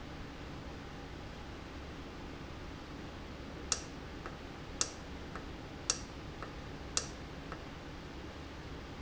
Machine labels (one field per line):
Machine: valve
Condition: normal